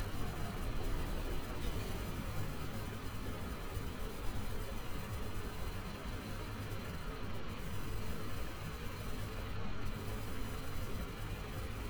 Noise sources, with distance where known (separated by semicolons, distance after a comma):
unidentified impact machinery, far